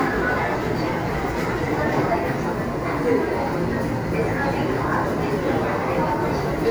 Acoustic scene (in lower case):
subway station